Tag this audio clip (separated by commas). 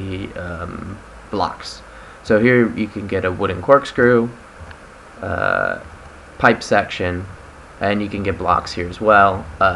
Speech